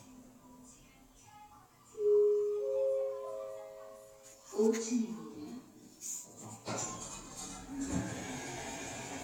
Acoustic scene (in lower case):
elevator